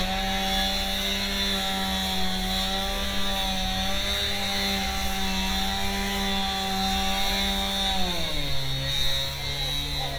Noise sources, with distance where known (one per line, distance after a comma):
unidentified powered saw, near